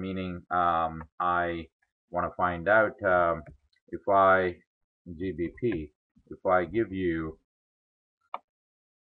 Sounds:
speech

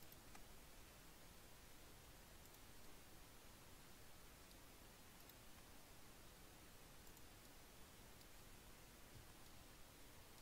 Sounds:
silence

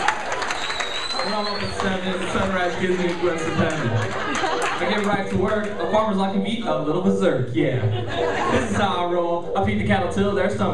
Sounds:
speech

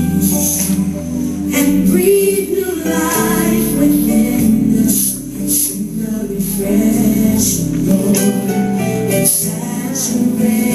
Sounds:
music

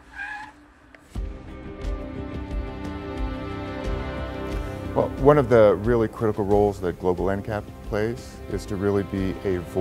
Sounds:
music
vehicle
speech

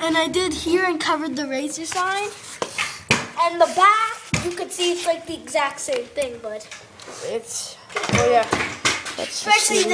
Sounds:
speech

